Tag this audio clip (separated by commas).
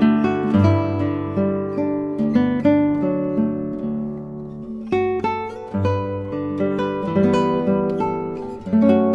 Musical instrument, Guitar, Music, Strum, Plucked string instrument